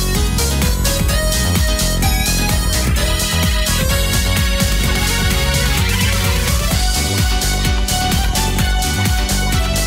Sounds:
music, new-age music

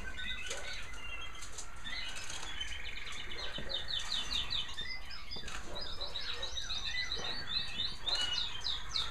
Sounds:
bird song

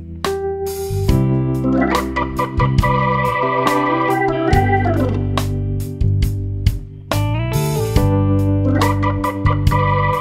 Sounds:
music

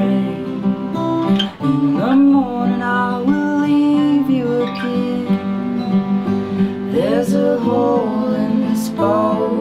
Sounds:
music

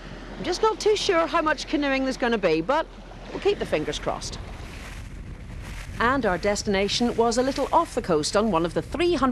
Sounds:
speech, kayak, vehicle

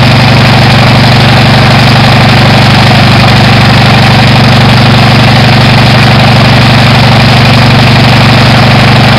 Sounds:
idling, engine

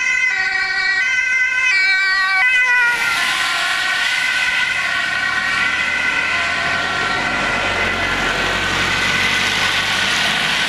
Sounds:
siren, emergency vehicle, ambulance siren, ambulance (siren)

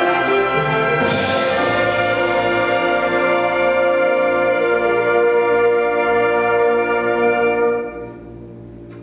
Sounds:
music, inside a large room or hall, orchestra

